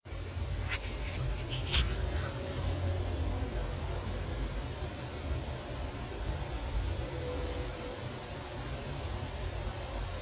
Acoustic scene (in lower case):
elevator